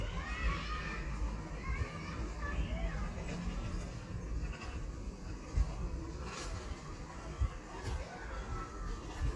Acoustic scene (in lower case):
residential area